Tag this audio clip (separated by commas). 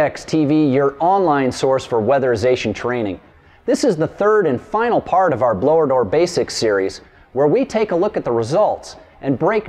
Speech